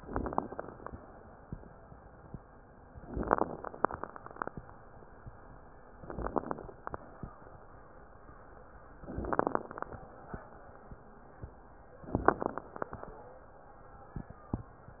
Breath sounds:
0.00-0.88 s: inhalation
0.00-0.88 s: crackles
2.98-3.85 s: inhalation
2.98-3.85 s: crackles
5.92-6.79 s: inhalation
5.92-6.79 s: crackles
8.97-9.85 s: inhalation
8.97-9.85 s: crackles
12.07-12.94 s: inhalation
12.07-12.94 s: crackles

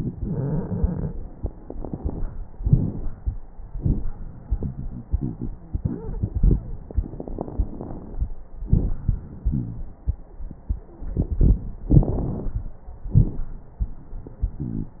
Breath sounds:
0.17-1.10 s: wheeze
0.23-1.08 s: inhalation
2.58-3.14 s: exhalation
2.58-3.14 s: crackles
6.87-8.25 s: inhalation
6.87-8.25 s: crackles
8.62-9.07 s: exhalation
8.62-9.07 s: crackles
9.47-9.85 s: wheeze
11.89-12.75 s: inhalation
11.89-12.75 s: crackles
13.14-13.47 s: exhalation
13.14-13.47 s: crackles
14.68-15.00 s: wheeze

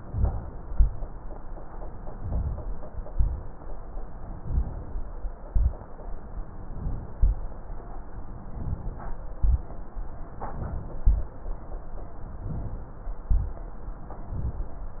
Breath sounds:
0.00-0.67 s: inhalation
0.67-1.14 s: exhalation
2.09-2.69 s: inhalation
3.09-3.57 s: exhalation
4.31-4.93 s: inhalation
5.49-5.86 s: exhalation
6.68-7.17 s: inhalation
7.17-7.67 s: exhalation
8.52-9.14 s: inhalation
9.39-9.81 s: exhalation
10.44-10.98 s: inhalation
11.01-11.40 s: exhalation
12.41-12.94 s: inhalation
13.26-13.60 s: exhalation
14.21-14.76 s: inhalation

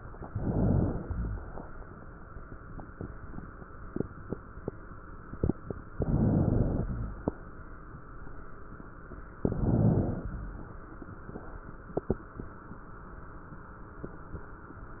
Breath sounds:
0.16-1.08 s: inhalation
0.16-1.08 s: crackles
1.02-1.96 s: exhalation
1.08-1.96 s: crackles
5.91-6.87 s: inhalation
5.91-6.87 s: crackles
6.87-8.01 s: exhalation
6.87-8.01 s: crackles
9.37-10.25 s: inhalation
9.37-10.25 s: crackles
10.27-11.15 s: exhalation

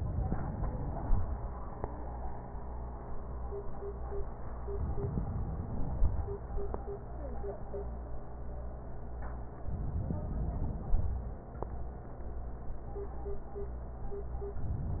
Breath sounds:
4.67-6.45 s: inhalation
9.66-11.35 s: inhalation

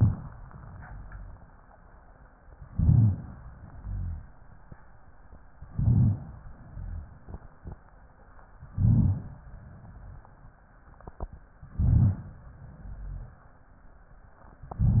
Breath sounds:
0.65-1.44 s: exhalation
0.65-1.44 s: rhonchi
2.69-3.38 s: inhalation
2.69-3.38 s: rhonchi
3.68-4.37 s: exhalation
3.68-4.37 s: rhonchi
5.69-6.38 s: inhalation
5.69-6.38 s: rhonchi
6.58-7.27 s: exhalation
6.58-7.27 s: rhonchi
8.71-9.39 s: inhalation
8.71-9.39 s: rhonchi
9.60-10.29 s: exhalation
9.60-10.29 s: rhonchi
11.69-12.37 s: inhalation
11.69-12.37 s: rhonchi
12.75-13.44 s: exhalation
12.75-13.44 s: rhonchi

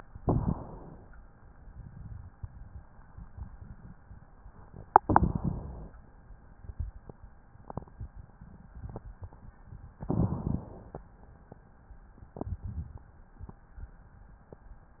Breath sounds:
0.18-1.08 s: inhalation
5.05-5.95 s: inhalation
10.01-11.07 s: inhalation

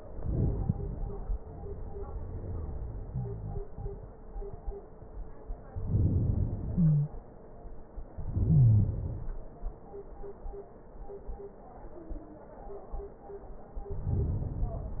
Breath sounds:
0.00-1.38 s: inhalation
1.40-4.18 s: exhalation
3.01-4.18 s: wheeze
5.78-6.74 s: inhalation
6.72-7.19 s: wheeze
6.72-7.97 s: exhalation
8.07-9.36 s: inhalation
8.36-8.99 s: wheeze
13.76-15.00 s: inhalation

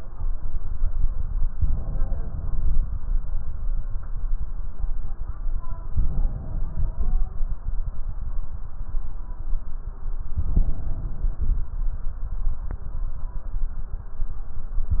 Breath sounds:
1.50-2.92 s: inhalation
5.89-7.26 s: inhalation
10.37-11.74 s: inhalation

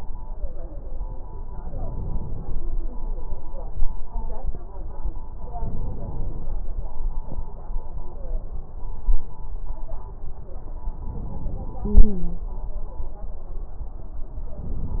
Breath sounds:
1.50-2.81 s: inhalation
5.53-6.48 s: inhalation
11.04-12.46 s: inhalation
11.82-12.46 s: stridor
14.58-15.00 s: inhalation

